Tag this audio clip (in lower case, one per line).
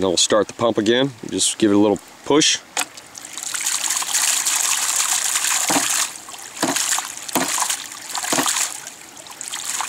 pumping water